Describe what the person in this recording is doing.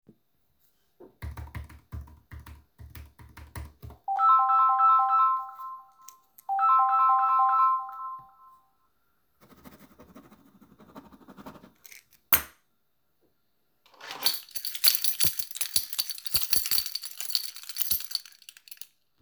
I was typing on the keyboard while shaking a keychain on the desk. During typing the phone started ringing. I continued typing for a few seconds and then wrote something on paper with a pen